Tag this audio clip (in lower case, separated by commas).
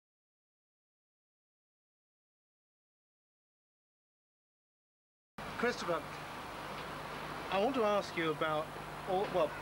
speech